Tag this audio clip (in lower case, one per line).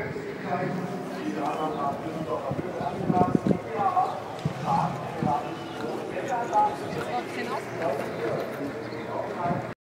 speech